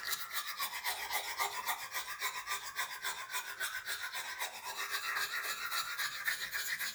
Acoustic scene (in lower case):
restroom